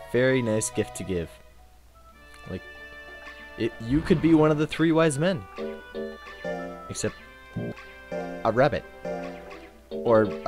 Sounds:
music
speech

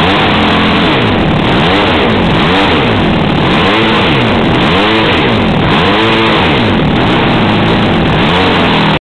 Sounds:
engine
accelerating
medium engine (mid frequency)

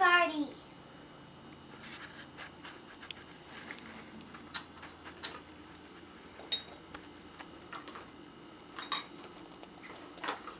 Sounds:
speech

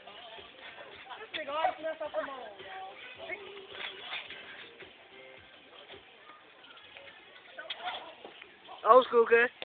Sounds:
speech
music

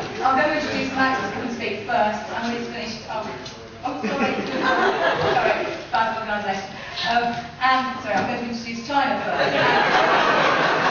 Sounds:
speech

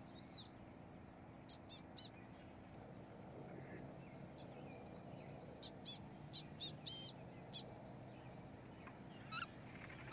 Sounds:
animal

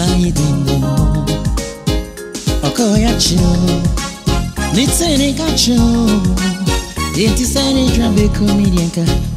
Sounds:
music

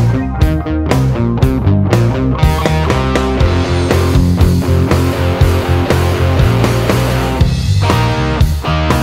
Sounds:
plucked string instrument
musical instrument
music
electric guitar

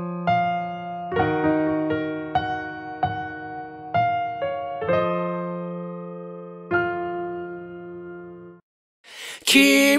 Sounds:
music

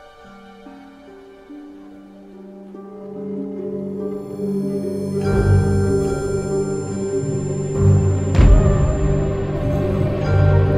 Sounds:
music

